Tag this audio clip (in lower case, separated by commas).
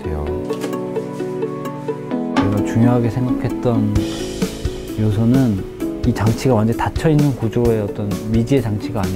music, speech